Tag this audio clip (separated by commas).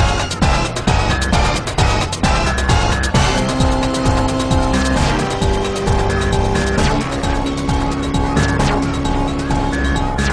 Video game music